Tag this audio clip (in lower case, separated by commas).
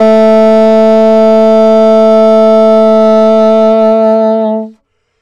music, musical instrument, wind instrument